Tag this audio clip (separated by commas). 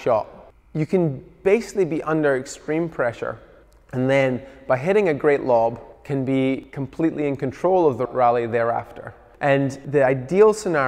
playing squash